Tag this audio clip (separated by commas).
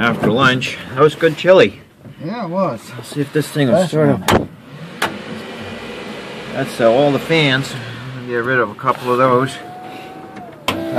Vehicle, Speech